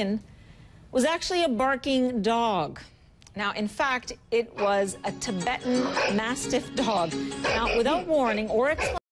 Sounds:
dog, music, animal, bow-wow, domestic animals, speech

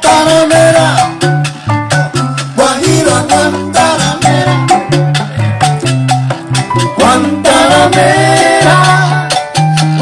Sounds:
percussion

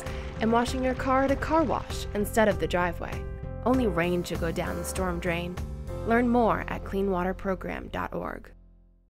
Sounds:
music, stream, speech

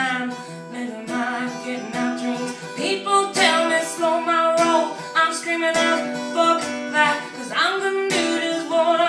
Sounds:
music, female singing

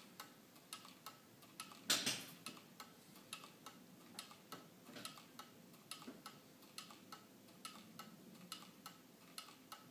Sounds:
tick, tick-tock

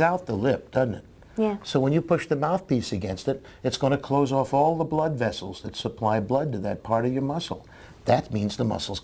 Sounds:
conversation

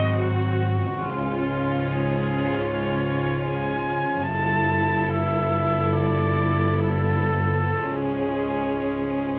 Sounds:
music

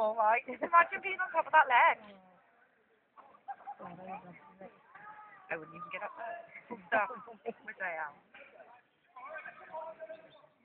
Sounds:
outside, rural or natural, speech

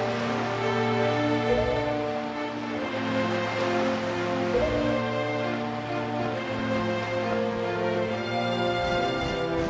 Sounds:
rustling leaves, music

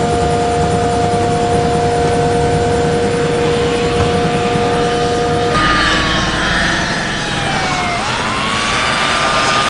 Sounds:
police car (siren), vehicle, motor vehicle (road), car

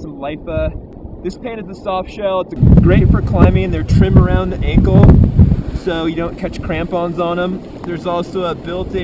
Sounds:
speech

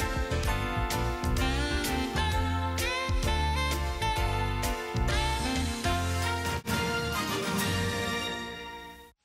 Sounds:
music, television

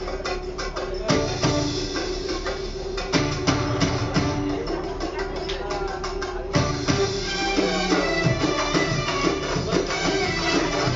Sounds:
music, speech

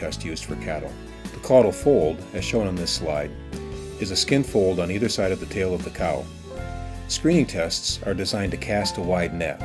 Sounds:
music, speech

